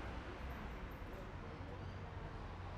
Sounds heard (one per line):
people talking